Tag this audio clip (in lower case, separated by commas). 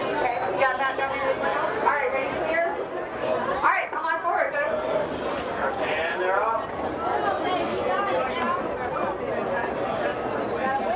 speech